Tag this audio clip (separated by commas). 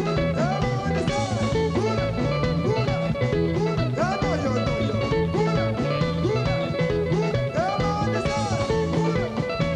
Singing, Rock and roll